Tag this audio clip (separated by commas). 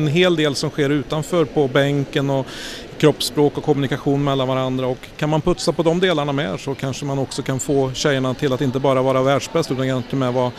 Speech